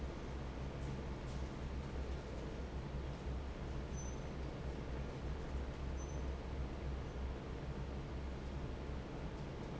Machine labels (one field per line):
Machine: fan